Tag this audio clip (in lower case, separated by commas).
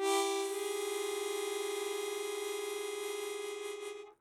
musical instrument, music, harmonica